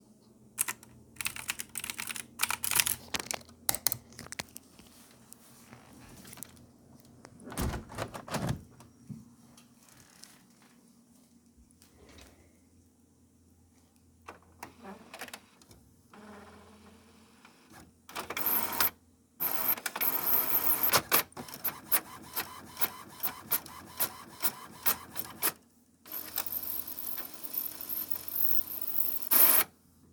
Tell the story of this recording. I did some typing on a file, then gave a print action. Got up, closed my window, then the printer started printing.